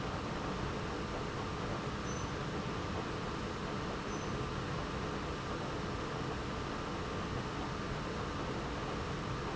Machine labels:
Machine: pump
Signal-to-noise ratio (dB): -6 dB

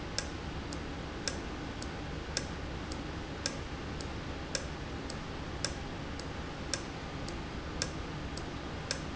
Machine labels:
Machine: valve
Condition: normal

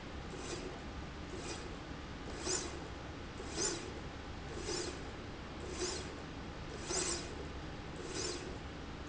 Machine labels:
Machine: slide rail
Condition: normal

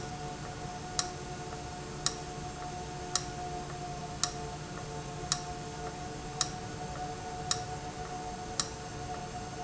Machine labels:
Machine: valve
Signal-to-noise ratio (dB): -6 dB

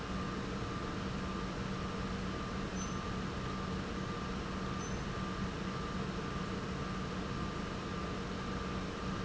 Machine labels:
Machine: pump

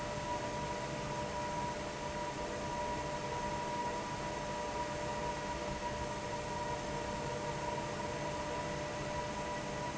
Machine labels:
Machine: fan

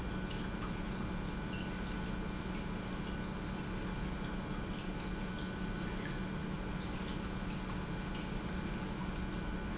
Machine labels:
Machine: pump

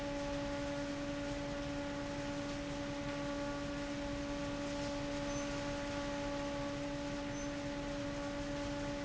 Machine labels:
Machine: fan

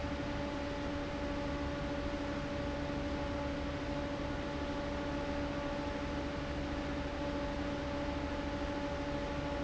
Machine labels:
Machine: fan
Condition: abnormal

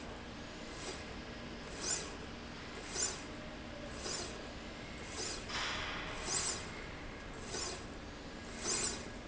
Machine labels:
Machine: slide rail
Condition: normal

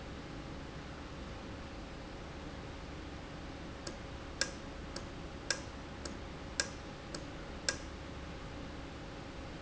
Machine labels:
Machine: valve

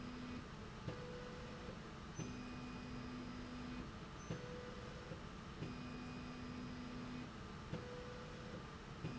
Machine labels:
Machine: slide rail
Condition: normal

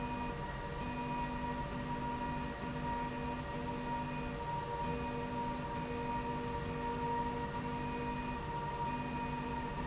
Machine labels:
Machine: slide rail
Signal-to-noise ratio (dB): -6 dB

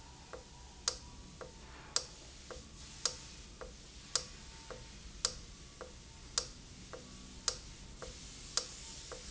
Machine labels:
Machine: valve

